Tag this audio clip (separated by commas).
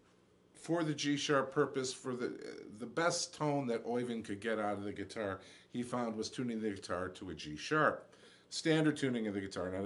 Speech